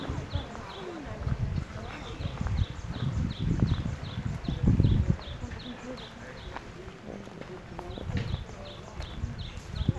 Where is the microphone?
in a park